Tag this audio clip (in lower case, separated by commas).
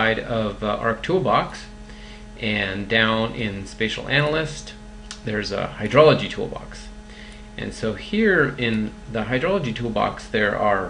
speech